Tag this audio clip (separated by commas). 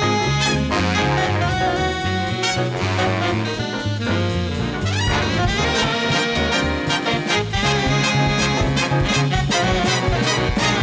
Musical instrument, Orchestra, Jazz, Music